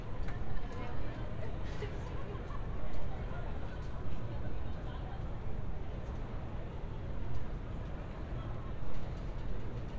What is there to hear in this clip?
person or small group talking